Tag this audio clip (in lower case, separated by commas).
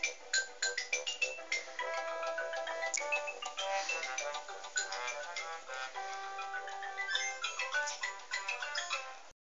music